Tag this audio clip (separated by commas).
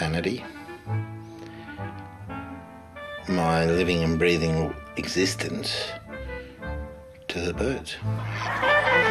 Cluck, Chicken, Fowl